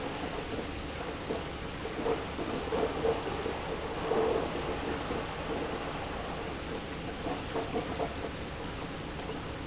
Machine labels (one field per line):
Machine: pump